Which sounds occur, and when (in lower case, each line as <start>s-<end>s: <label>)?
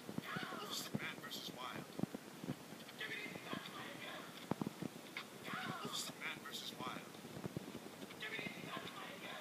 0.0s-9.4s: background noise
0.1s-1.7s: male speech
3.1s-3.7s: male speech
5.9s-7.1s: male speech
8.1s-8.9s: male speech